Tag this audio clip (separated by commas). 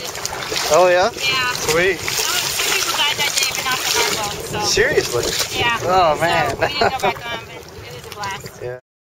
kayak, Boat, Speech, Vehicle